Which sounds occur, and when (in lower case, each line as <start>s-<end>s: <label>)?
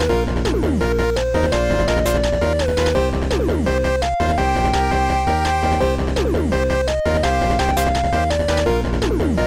0.0s-9.4s: music